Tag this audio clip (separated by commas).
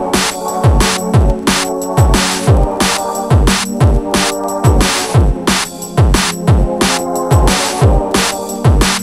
Musical instrument, Drum kit, Drum, Music